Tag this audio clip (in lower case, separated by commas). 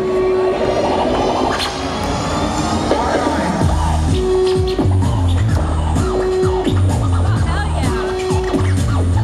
speech, music